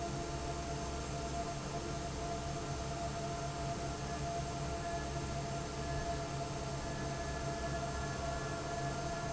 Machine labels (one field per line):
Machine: fan